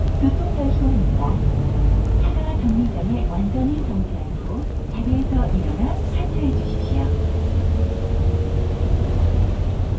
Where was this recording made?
on a bus